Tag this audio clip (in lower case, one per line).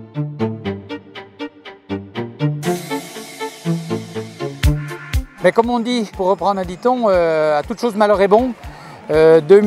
music
speech
outside, urban or man-made